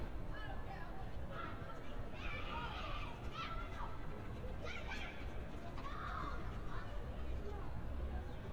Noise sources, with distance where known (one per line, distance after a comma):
person or small group shouting